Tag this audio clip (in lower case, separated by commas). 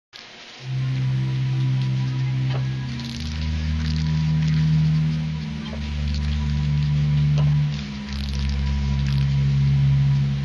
spray, music